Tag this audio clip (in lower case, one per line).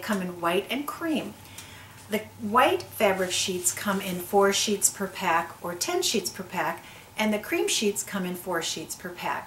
speech